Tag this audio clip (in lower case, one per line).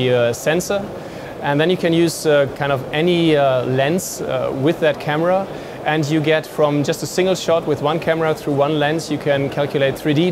speech